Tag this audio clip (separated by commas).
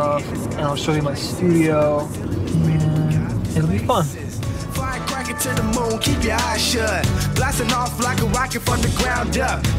Music, Speech